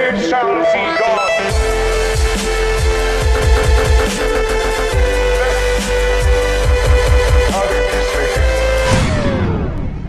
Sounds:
Dubstep, Music, Electronic music

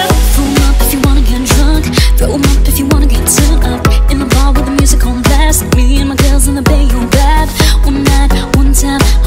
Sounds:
Music

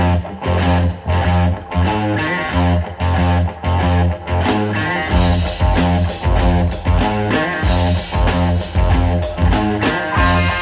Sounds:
Ska

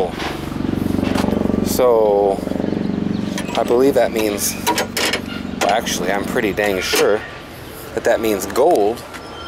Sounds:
Speech, Car, outside, urban or man-made, Vehicle

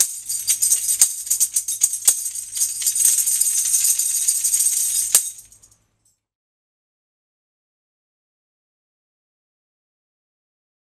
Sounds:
playing tambourine

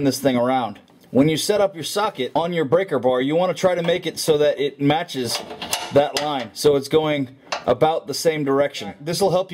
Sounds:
Speech, inside a small room

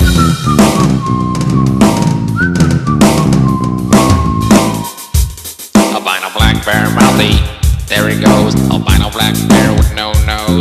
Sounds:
Blues, Music

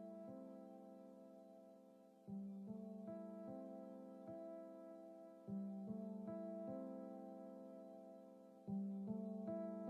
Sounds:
Music

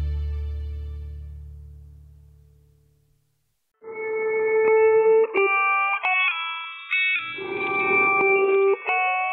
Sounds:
inside a small room, Music

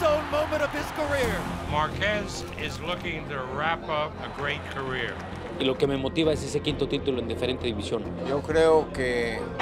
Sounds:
Speech

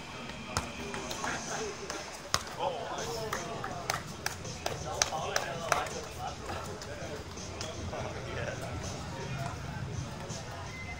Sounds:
Speech, Basketball bounce, Music

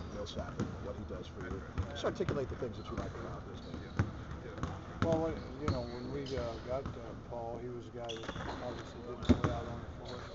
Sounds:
Speech

